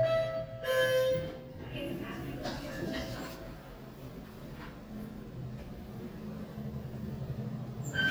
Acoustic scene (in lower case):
elevator